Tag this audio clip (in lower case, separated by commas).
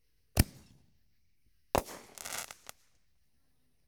fireworks, explosion